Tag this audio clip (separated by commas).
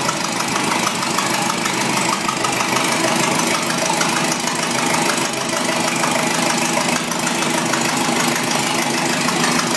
Car, Vehicle, Idling, Engine